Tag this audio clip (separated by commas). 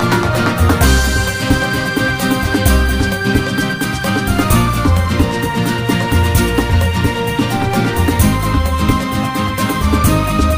Theme music, Music